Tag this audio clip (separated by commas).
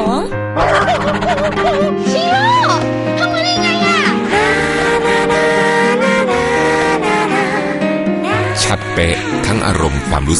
Animal, Speech, Music, Dog, pets